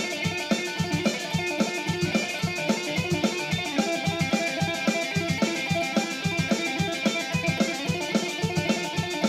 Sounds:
plucked string instrument, strum, music, musical instrument, guitar

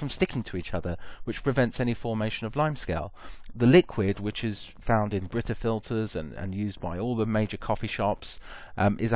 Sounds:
speech

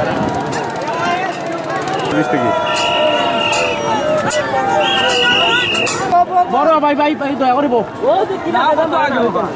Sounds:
boat, canoe, speech

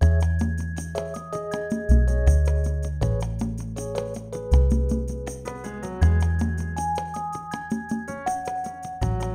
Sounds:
music

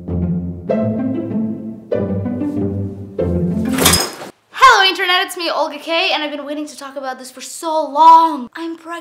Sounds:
music, inside a small room, speech

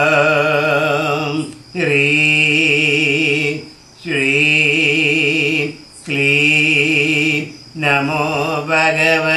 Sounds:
mantra

